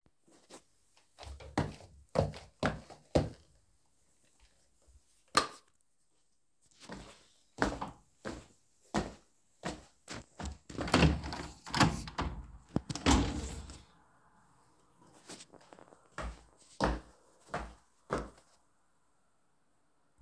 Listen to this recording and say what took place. walked towards the bedroom door, opened it,turned on the lights and went towards the window and opened it.